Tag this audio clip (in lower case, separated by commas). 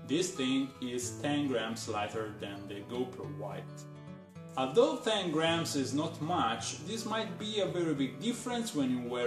music, speech